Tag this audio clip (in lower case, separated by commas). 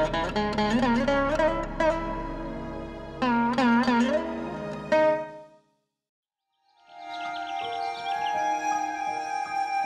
sitar